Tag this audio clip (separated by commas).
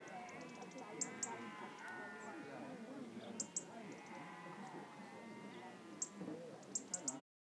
Animal, livestock, Wild animals, Chatter, tweet, bird call, Bird, Human group actions